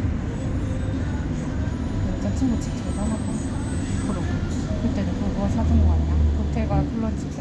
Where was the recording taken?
on a bus